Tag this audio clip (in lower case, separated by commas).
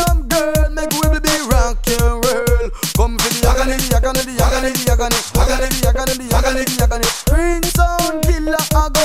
music, sound effect